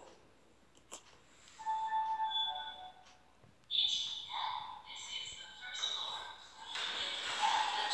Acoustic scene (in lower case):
elevator